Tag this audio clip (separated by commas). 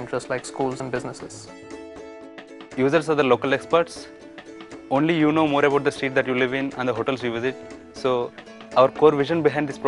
Speech, Music